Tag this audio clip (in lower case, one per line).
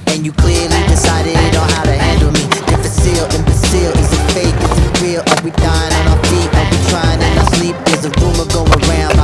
skateboard